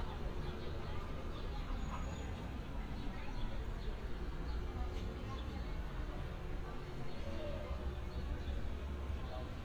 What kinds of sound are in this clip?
background noise